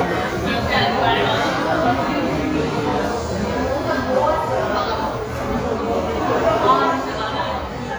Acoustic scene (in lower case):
crowded indoor space